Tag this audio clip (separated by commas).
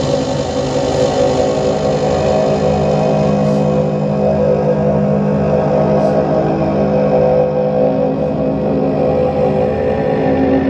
Musical instrument, Music, Didgeridoo